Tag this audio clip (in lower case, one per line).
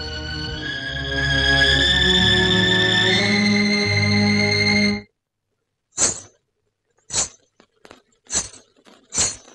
music